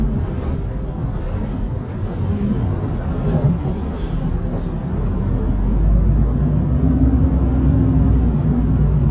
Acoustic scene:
bus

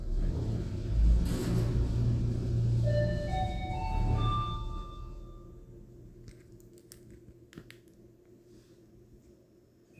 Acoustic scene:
elevator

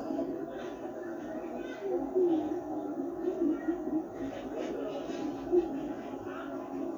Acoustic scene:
park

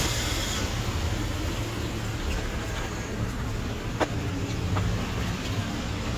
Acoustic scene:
street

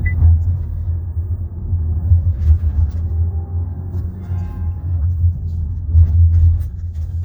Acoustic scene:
car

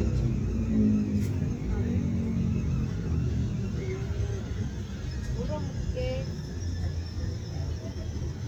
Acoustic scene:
residential area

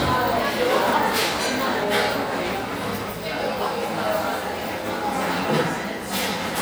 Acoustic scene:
cafe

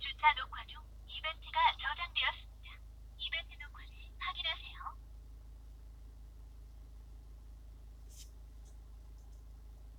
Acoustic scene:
car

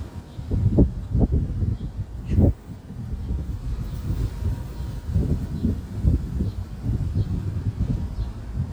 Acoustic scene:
residential area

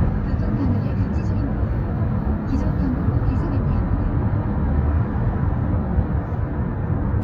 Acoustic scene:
car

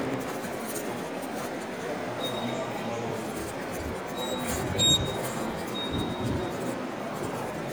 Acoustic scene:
subway station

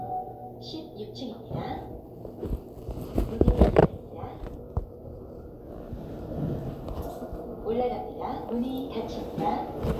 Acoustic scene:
elevator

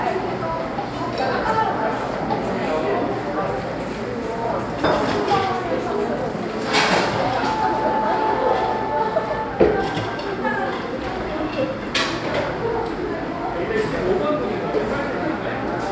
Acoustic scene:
cafe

